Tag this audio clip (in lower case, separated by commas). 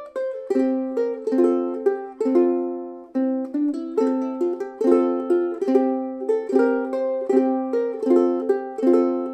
music, ukulele